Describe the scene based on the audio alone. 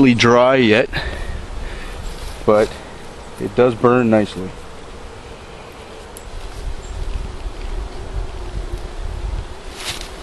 A man speaks and leaves rustle